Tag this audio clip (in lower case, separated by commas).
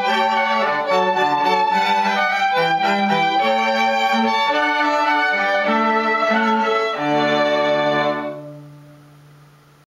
music